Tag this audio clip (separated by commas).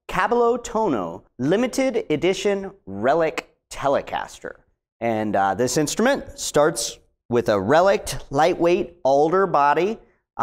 Speech